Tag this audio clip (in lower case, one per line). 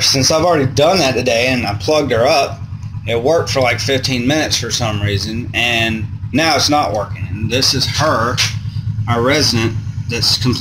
speech